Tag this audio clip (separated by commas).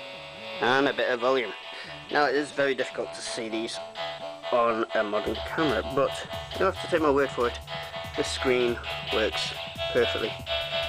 Music, Speech